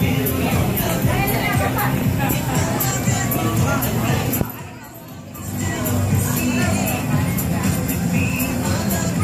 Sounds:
music
crowd
speech

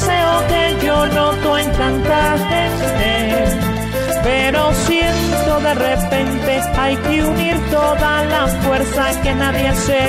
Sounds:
music

